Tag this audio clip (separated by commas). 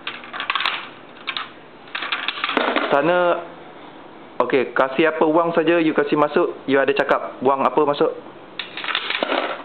Speech